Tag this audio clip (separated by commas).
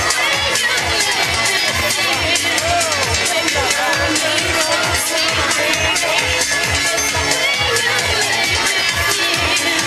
Music, Speech